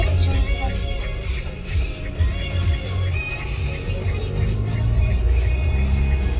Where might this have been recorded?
in a car